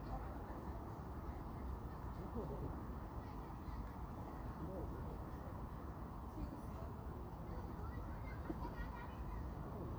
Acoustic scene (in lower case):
park